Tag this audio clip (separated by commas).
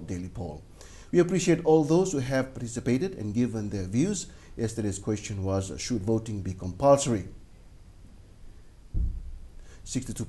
Speech